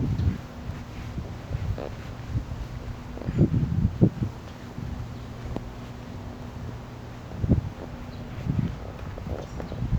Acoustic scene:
park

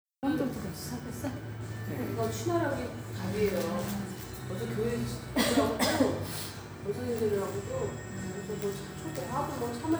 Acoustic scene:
cafe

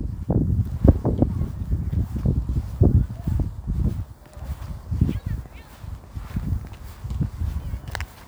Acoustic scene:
park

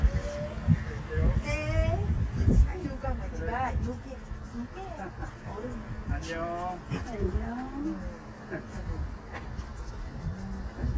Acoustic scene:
residential area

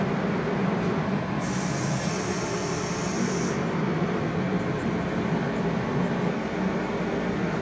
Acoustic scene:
subway station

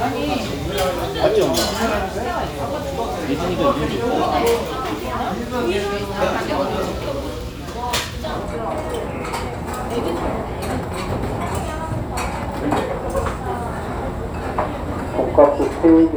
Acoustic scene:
restaurant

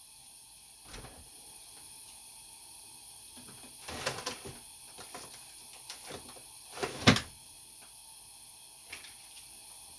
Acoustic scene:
kitchen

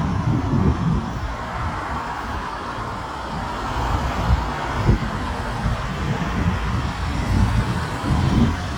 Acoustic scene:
street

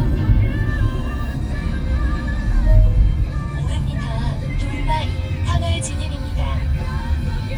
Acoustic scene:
car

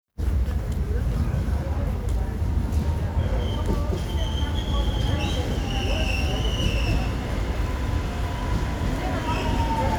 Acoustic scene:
subway station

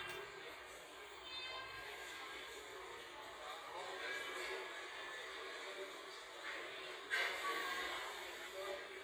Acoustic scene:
crowded indoor space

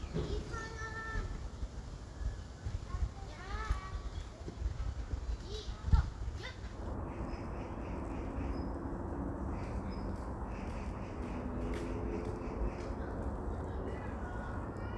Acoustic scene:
park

